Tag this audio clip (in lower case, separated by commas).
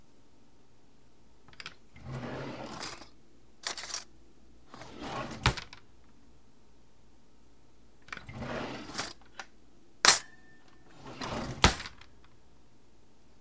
domestic sounds, cutlery, drawer open or close